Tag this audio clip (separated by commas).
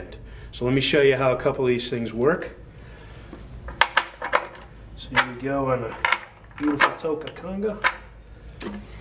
Speech